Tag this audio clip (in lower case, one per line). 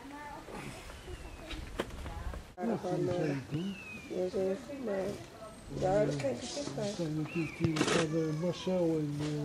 speech